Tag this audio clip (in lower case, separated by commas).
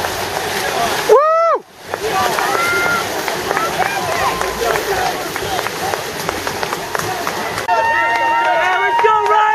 speech, outside, rural or natural